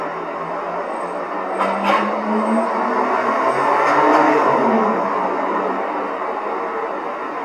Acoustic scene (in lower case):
street